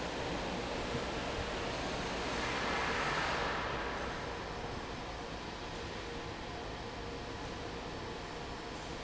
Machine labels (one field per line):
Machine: fan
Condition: normal